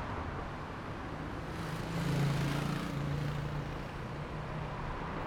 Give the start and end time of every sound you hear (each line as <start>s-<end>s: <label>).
0.0s-3.1s: car
0.0s-3.1s: car wheels rolling
1.5s-5.3s: motorcycle
1.5s-5.3s: motorcycle engine accelerating
4.5s-5.3s: car
4.5s-5.3s: car wheels rolling
5.2s-5.3s: bus
5.2s-5.3s: bus wheels rolling